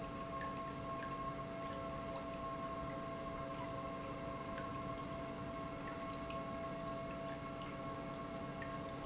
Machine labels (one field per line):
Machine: pump